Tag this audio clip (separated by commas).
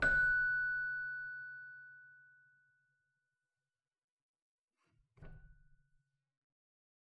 Musical instrument, Keyboard (musical), Music